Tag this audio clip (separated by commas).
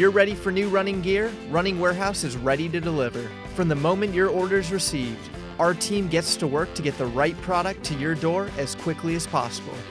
Music, Speech